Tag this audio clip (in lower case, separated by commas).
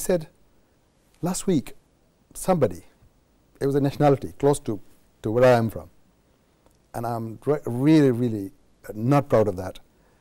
speech